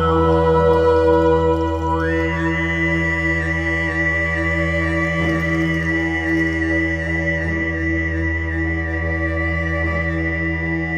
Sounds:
musical instrument, music, cello, didgeridoo

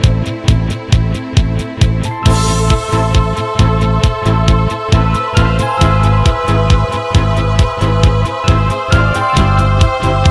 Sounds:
exciting music, music

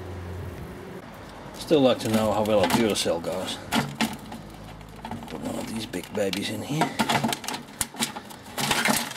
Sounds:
speech, microwave oven

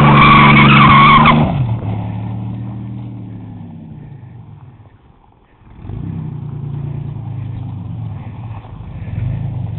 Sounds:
car, vehicle, motor vehicle (road)

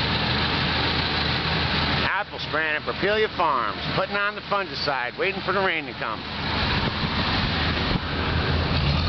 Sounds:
speech

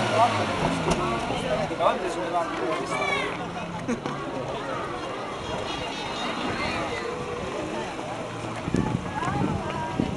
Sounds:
crowd, speech

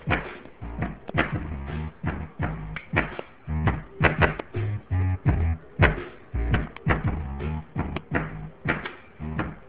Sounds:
music

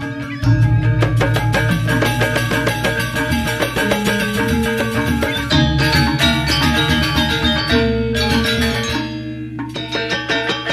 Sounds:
music

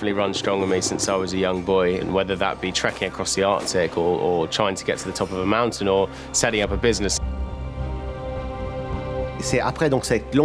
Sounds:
music, speech

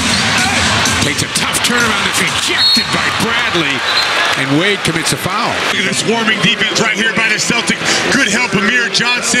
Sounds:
speech

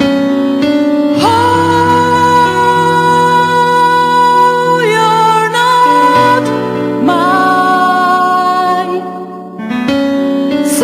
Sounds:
music, piano

